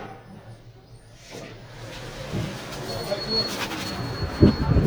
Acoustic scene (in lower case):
elevator